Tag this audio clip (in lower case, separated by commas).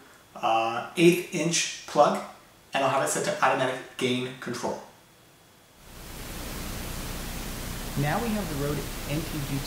speech